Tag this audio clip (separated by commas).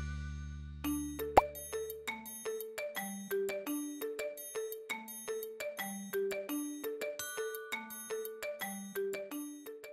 Music, Plop